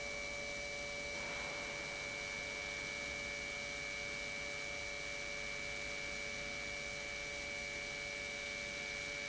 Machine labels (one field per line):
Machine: pump